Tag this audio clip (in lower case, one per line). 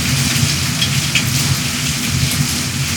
water
liquid
rain
drip